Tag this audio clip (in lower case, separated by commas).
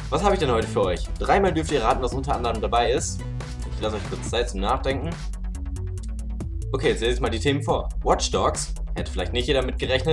speech, music